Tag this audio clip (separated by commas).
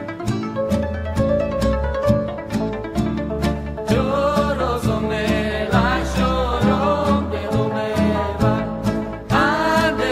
Music, Middle Eastern music